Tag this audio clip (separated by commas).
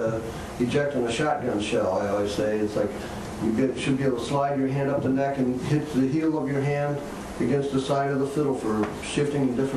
Speech